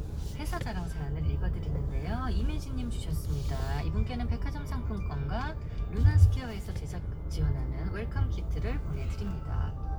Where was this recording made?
in a car